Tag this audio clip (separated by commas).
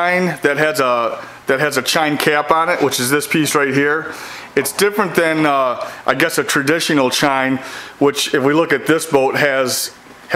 Speech